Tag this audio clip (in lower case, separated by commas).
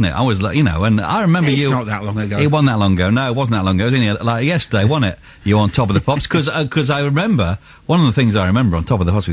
speech